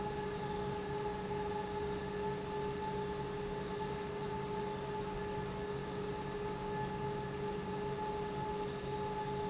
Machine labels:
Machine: pump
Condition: normal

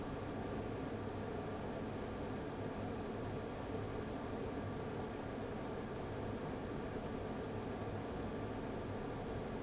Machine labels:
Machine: fan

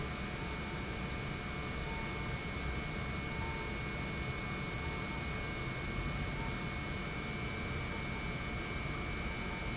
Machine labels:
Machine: pump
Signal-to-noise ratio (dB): -6 dB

